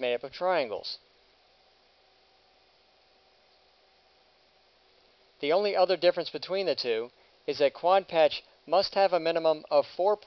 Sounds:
Speech

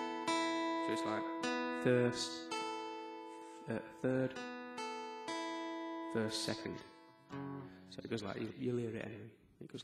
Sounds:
Speech, Music, Musical instrument, Acoustic guitar, Guitar, Plucked string instrument

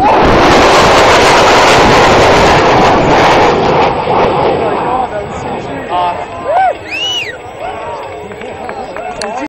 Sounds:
Speech

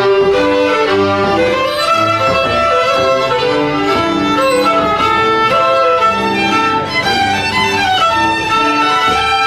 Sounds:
Musical instrument, fiddle, Music

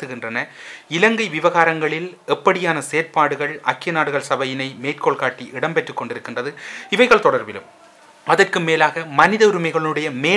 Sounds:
Speech, Male speech

